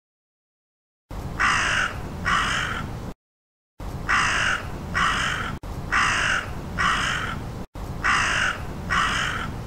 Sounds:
crow cawing

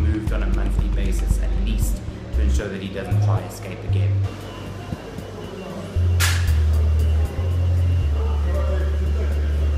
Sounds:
inside a large room or hall
speech

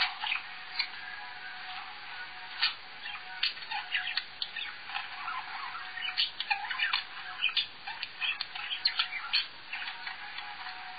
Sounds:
bird
music
domestic animals

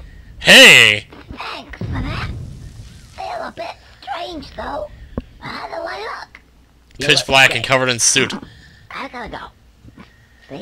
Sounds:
speech
inside a small room

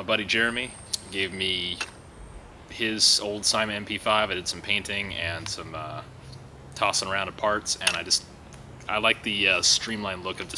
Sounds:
speech

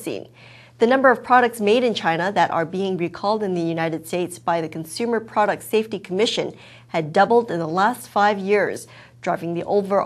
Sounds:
speech

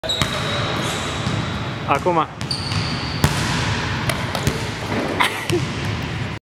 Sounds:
speech

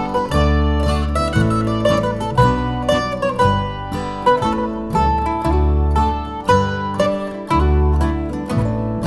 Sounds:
playing mandolin

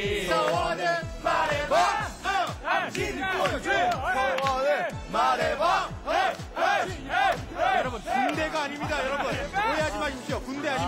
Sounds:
choir
male singing
speech
music
female singing

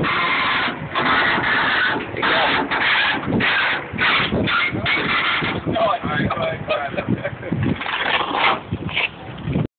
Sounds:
speech

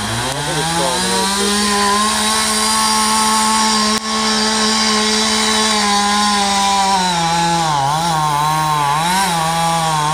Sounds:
chainsawing trees

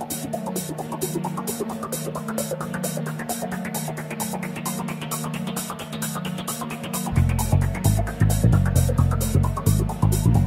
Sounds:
electronic music
music
techno

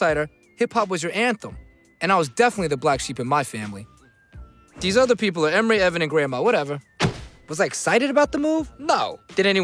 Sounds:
speech
music

